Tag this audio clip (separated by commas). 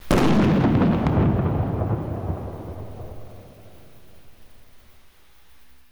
Explosion, Boom